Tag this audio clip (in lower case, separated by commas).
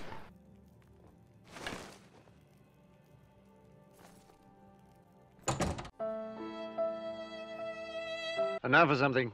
inside a small room, music, speech